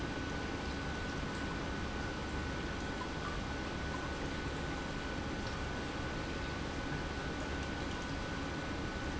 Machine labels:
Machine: pump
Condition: normal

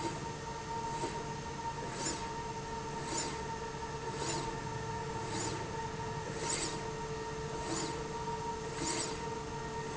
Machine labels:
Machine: slide rail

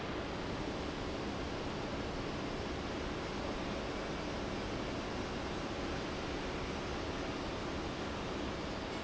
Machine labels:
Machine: fan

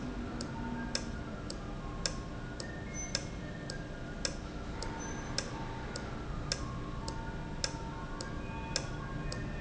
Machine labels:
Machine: valve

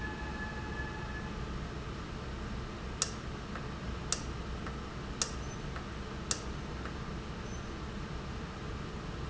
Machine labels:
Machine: valve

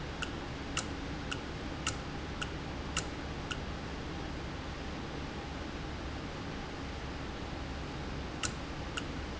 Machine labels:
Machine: valve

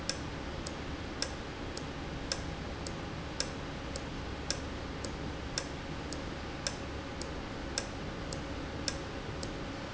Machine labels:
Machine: valve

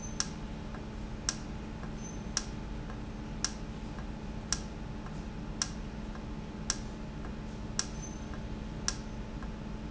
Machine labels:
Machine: valve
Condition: normal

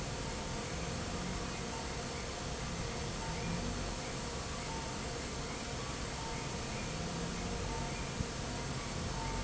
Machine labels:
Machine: fan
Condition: normal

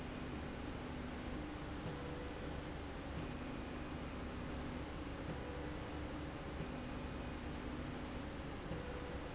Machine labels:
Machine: slide rail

